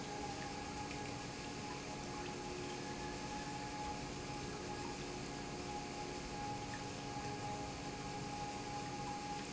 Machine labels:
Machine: pump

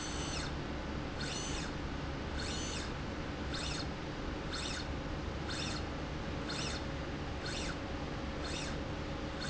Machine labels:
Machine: slide rail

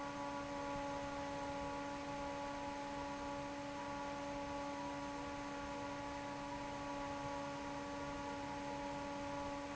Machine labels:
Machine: fan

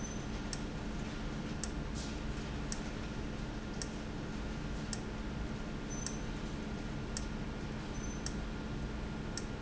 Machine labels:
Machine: valve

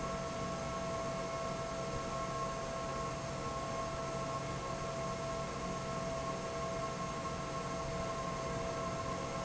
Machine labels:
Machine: fan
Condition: normal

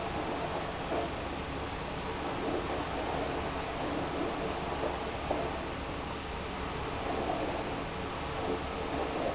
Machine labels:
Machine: pump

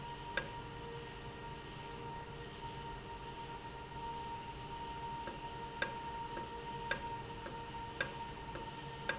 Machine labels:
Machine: valve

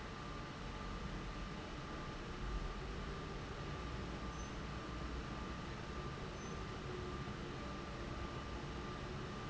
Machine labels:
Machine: fan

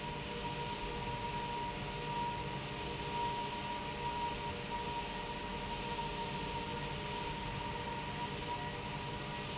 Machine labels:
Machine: fan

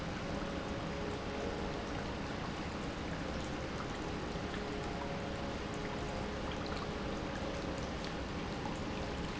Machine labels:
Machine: pump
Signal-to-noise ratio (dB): -6 dB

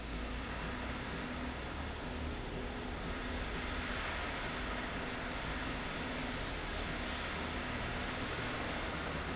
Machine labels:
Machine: slide rail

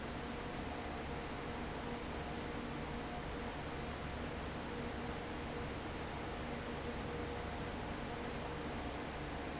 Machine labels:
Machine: fan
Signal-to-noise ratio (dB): 0 dB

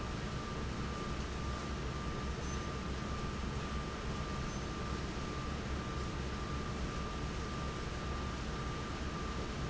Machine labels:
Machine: fan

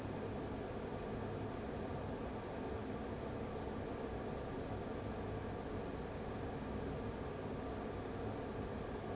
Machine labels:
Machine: fan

